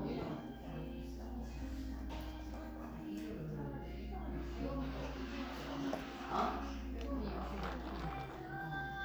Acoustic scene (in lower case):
crowded indoor space